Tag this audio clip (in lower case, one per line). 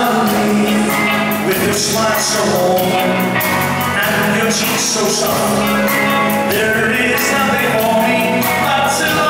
male singing
music